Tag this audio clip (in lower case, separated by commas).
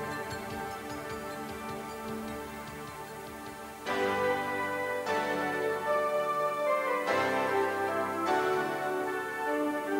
music